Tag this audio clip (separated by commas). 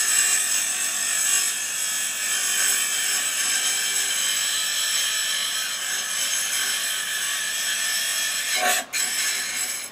inside a large room or hall